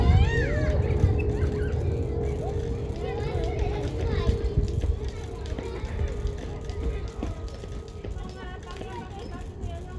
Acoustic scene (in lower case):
residential area